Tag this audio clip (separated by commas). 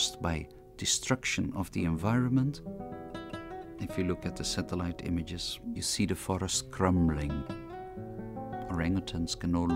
Music, Speech